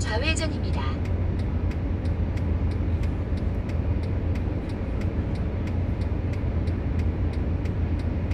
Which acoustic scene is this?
car